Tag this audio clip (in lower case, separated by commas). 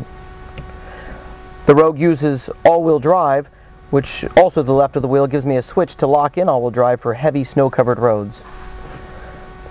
speech